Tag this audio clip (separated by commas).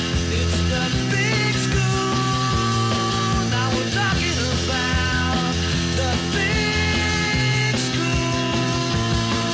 Music